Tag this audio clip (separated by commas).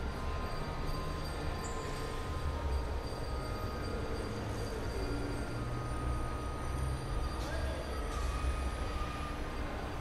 Music